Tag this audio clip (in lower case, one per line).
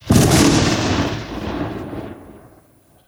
gunfire
explosion